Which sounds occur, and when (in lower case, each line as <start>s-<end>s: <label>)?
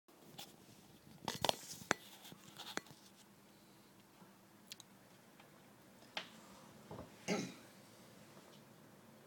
0.1s-9.2s: background noise
0.4s-0.5s: surface contact
0.6s-0.9s: surface contact
1.3s-1.5s: tick
1.4s-1.9s: surface contact
1.9s-2.0s: tick
2.0s-2.3s: surface contact
2.3s-3.2s: surface contact
2.7s-2.8s: tick
3.5s-3.9s: surface contact
4.7s-4.8s: clicking
5.3s-5.4s: clicking
5.9s-6.0s: clicking
6.1s-6.3s: tick
6.2s-6.6s: surface contact
6.9s-7.0s: generic impact sounds
7.2s-7.6s: throat clearing
7.6s-8.1s: surface contact
8.3s-8.4s: generic impact sounds
8.5s-8.6s: clicking